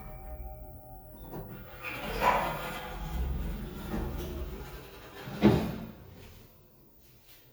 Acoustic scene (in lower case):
elevator